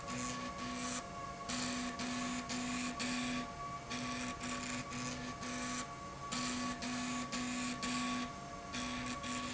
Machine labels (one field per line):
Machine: slide rail